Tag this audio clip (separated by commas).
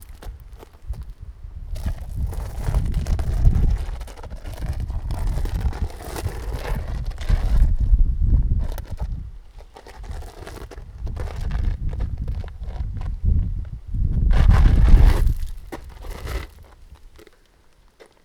Wind